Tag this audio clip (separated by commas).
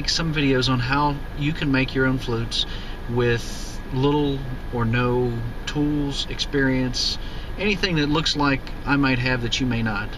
Speech